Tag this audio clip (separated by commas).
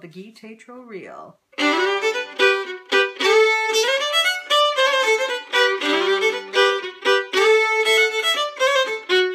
fiddle, Musical instrument, Music